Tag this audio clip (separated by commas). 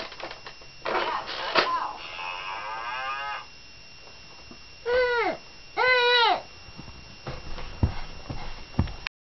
livestock, bovinae, Moo